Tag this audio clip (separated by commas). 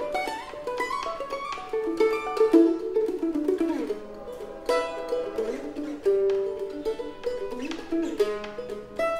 playing mandolin